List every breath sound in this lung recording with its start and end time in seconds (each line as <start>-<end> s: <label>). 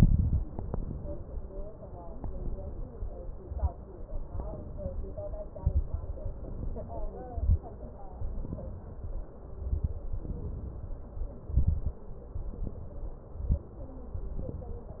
0.00-0.51 s: exhalation
0.00-0.51 s: crackles
0.55-1.58 s: inhalation
1.98-2.91 s: inhalation
3.34-3.77 s: exhalation
3.34-3.77 s: crackles
4.31-5.35 s: inhalation
5.55-6.06 s: exhalation
5.55-6.06 s: crackles
6.10-7.13 s: inhalation
7.26-7.77 s: exhalation
7.26-7.77 s: crackles
8.17-9.30 s: inhalation
9.56-10.07 s: exhalation
9.56-10.07 s: crackles
10.21-11.07 s: inhalation
11.52-12.03 s: exhalation
11.52-12.03 s: crackles
12.35-13.21 s: inhalation
13.24-13.76 s: exhalation
13.24-13.76 s: crackles
14.14-15.00 s: inhalation